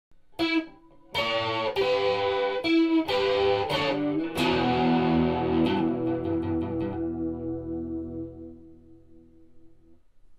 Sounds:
Music, Distortion, Electric guitar, Effects unit

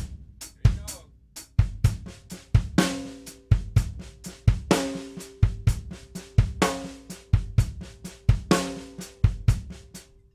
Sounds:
playing bass drum

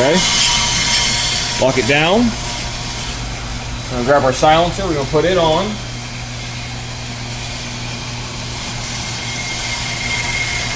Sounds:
Speech

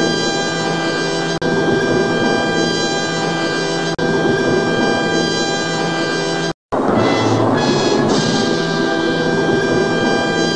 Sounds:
Music

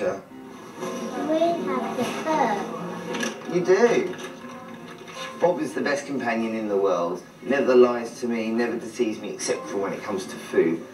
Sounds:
Speech, Music

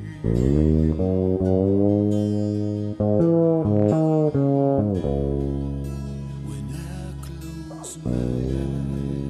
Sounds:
Guitar, slide guitar, Singing, Bass guitar, Musical instrument, Plucked string instrument, Music, Song

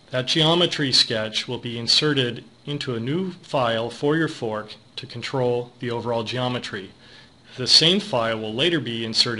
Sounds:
Speech

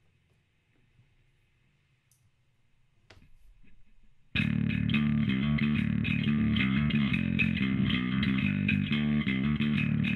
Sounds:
Music

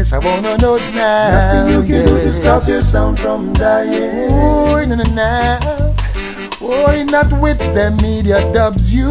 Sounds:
Music

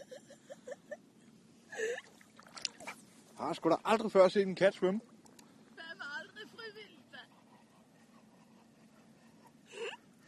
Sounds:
Speech

